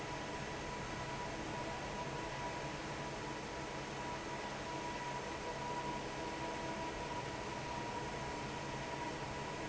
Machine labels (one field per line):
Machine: fan